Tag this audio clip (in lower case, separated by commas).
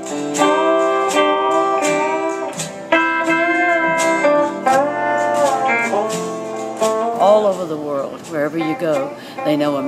speech, music, country